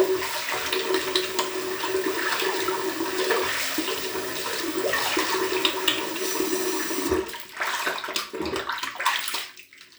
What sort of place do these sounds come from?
restroom